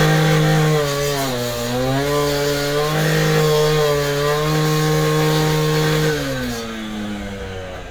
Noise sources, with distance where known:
chainsaw, near

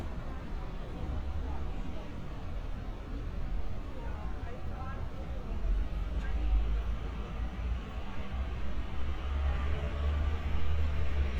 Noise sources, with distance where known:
person or small group talking

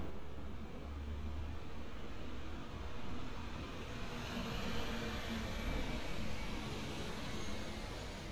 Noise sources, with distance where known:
engine of unclear size

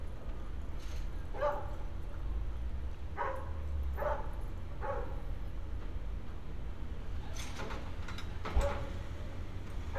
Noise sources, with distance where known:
dog barking or whining, near

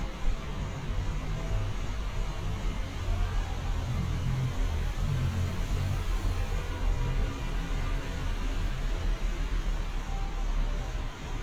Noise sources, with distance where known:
unidentified human voice

